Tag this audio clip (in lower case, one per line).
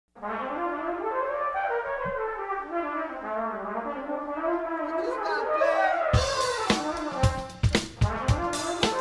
speech
music
french horn